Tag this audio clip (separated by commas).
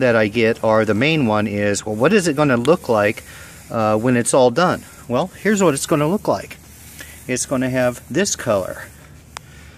Speech